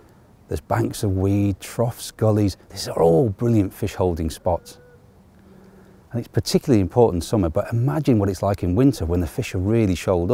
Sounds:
Speech

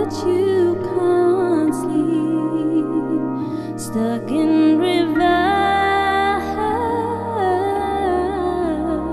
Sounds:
Theme music, Music

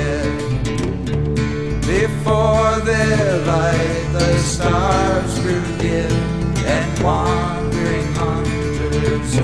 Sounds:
Music

